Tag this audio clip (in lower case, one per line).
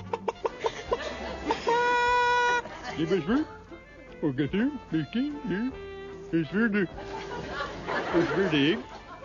speech
music